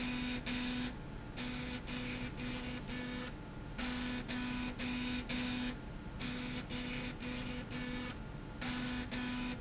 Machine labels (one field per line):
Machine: slide rail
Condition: abnormal